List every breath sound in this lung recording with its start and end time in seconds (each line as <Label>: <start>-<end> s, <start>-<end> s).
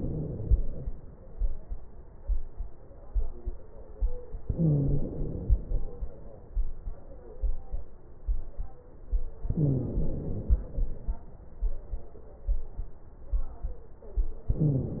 Inhalation: 0.00-1.04 s, 4.45-5.57 s, 9.48-10.83 s, 14.50-15.00 s
Wheeze: 0.00-0.53 s, 4.45-5.07 s, 9.48-10.16 s, 14.50-15.00 s